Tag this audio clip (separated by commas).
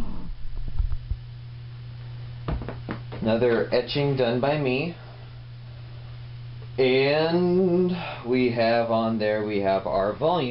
Speech